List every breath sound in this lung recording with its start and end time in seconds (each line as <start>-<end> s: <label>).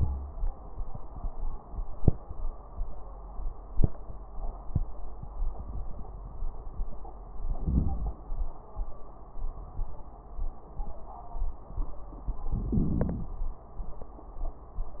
7.26-8.23 s: inhalation
12.45-13.42 s: inhalation
12.45-13.42 s: crackles